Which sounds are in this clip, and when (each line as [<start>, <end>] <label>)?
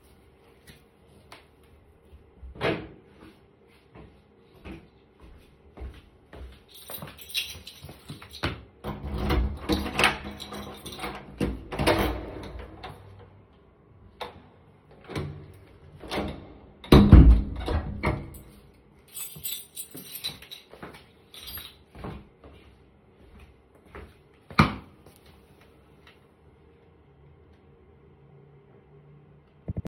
[1.01, 8.86] footsteps
[6.70, 8.86] keys
[8.78, 18.62] door
[10.32, 13.01] keys
[19.04, 21.87] keys
[21.66, 25.18] footsteps